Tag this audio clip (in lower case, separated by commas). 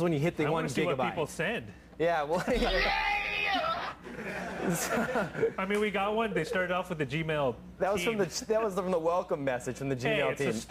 speech